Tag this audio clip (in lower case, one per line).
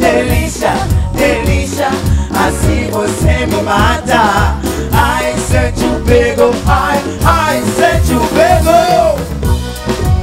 singing
music